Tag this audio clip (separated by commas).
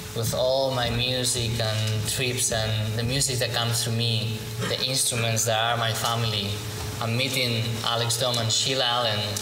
Speech